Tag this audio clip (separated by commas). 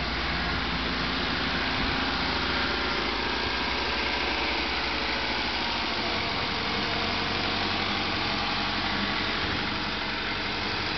Vehicle, Car, Engine, inside a large room or hall